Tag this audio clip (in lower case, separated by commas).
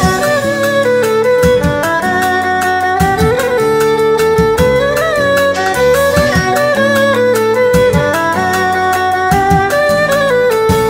playing erhu